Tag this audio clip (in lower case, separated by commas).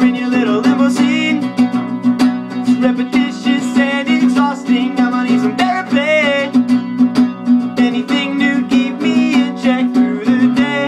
strum, musical instrument, music, acoustic guitar